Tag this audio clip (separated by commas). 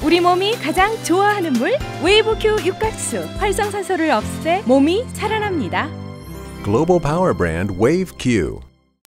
Music, Speech